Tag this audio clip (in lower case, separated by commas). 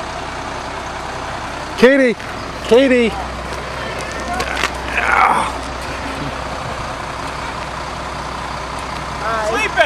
vehicle, run, speech, bus